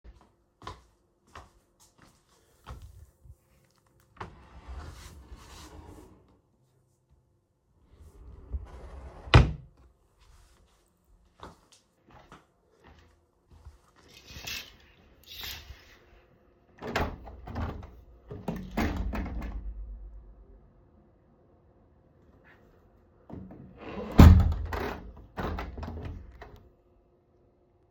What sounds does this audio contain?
wardrobe or drawer